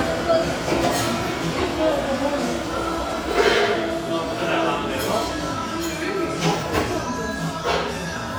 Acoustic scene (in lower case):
cafe